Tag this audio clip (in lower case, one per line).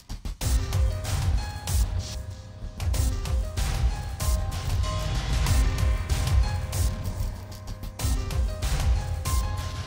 music